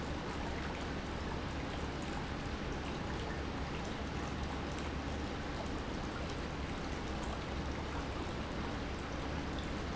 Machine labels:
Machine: pump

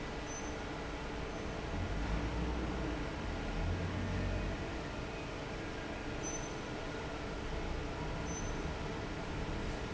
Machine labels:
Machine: fan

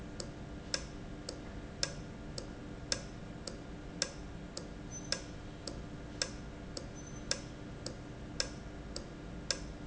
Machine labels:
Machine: valve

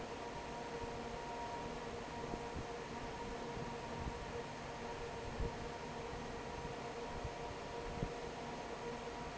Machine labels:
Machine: fan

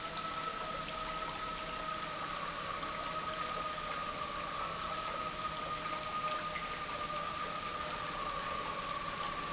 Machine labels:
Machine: pump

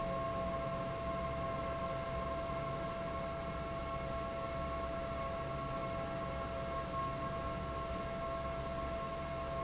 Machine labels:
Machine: fan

